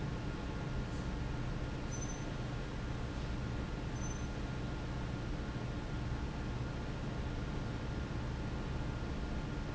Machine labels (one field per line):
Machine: fan